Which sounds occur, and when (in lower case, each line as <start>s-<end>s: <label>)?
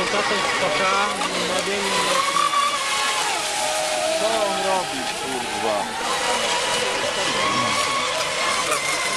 0.0s-1.1s: man speaking
0.0s-5.8s: conversation
0.0s-9.1s: light engine (high frequency)
0.0s-9.1s: stream
1.3s-2.6s: man speaking
3.0s-6.0s: cheering
4.1s-5.1s: man speaking
5.2s-5.8s: man speaking
7.1s-7.9s: human voice
8.5s-8.8s: human voice